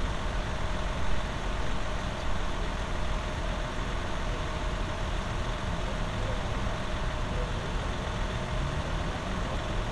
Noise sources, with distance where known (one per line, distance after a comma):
large-sounding engine, near